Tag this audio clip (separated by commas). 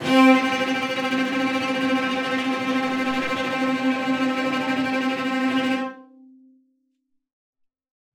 Musical instrument, Music, Bowed string instrument